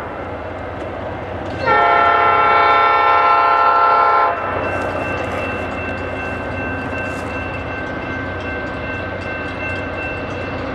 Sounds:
train, train wagon, outside, rural or natural, vehicle

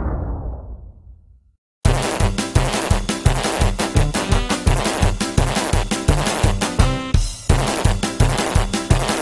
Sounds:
music

